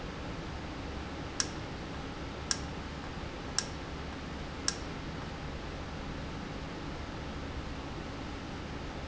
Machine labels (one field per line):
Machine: valve